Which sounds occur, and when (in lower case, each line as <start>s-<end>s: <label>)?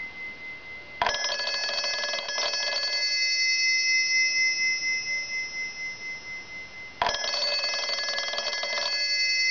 0.0s-9.5s: bell
0.0s-9.5s: mechanisms
1.0s-3.2s: telephone bell ringing
7.0s-9.0s: telephone bell ringing